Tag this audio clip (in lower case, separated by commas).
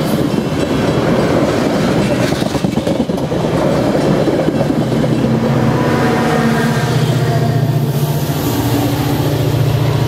train, train wagon, rail transport, vehicle